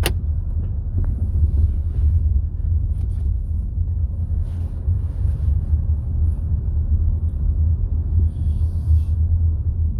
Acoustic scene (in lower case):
car